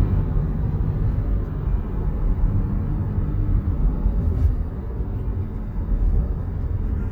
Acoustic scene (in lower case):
car